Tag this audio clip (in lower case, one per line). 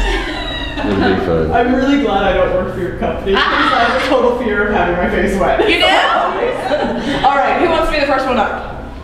speech